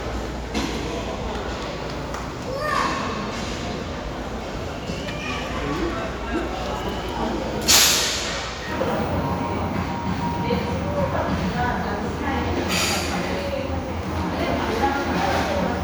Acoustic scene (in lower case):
crowded indoor space